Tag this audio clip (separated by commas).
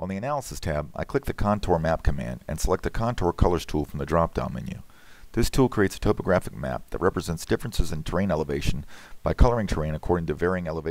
Speech